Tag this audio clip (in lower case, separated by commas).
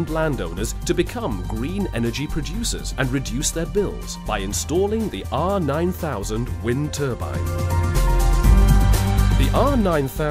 speech, music